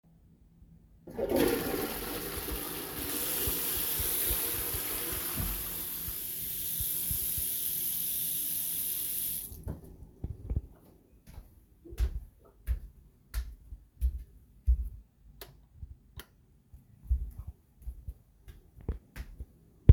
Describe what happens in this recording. I flushed the toilet, then i washed my hands. I then walked out of the bathroom and flicked the lights on then off.